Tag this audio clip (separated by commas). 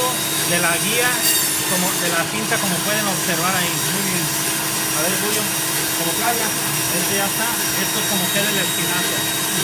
Speech